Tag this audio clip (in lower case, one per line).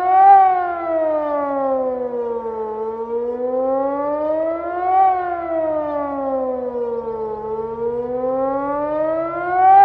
civil defense siren